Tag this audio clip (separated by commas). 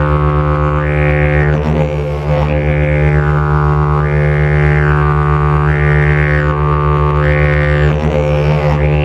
Harmonic, Music